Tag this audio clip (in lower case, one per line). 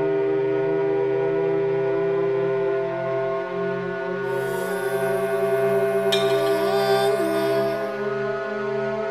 music